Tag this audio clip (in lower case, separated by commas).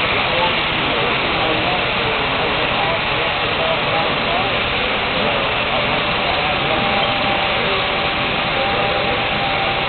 speech